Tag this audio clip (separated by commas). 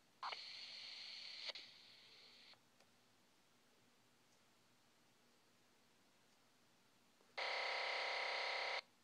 Radio